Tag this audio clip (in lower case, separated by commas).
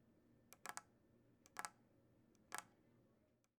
tap